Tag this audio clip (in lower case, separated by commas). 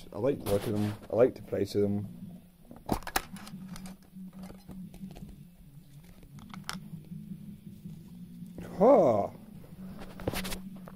speech